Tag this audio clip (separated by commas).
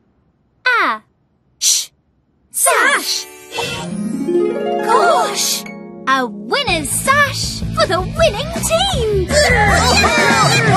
Music, Speech